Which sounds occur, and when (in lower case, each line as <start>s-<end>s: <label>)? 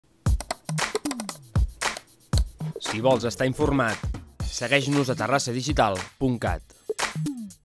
0.0s-7.6s: music
0.2s-7.6s: music
0.8s-0.9s: clapping
1.8s-2.0s: clapping
2.8s-3.0s: clapping
2.8s-4.0s: male speech
3.8s-4.0s: clapping
4.5s-6.1s: male speech
4.9s-5.0s: clapping
5.9s-6.1s: clapping
6.2s-6.6s: male speech
7.0s-7.1s: clapping